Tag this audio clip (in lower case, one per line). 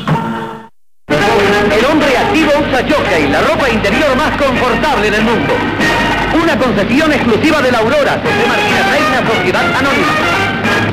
radio
speech
music